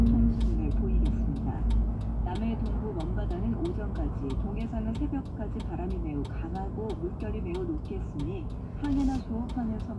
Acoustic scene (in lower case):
car